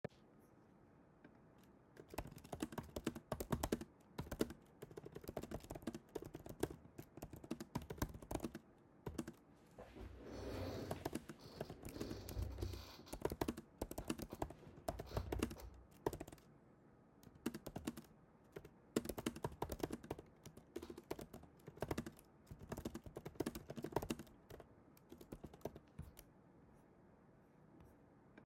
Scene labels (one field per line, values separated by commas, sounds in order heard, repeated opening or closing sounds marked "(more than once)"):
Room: bedroom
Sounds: keyboard typing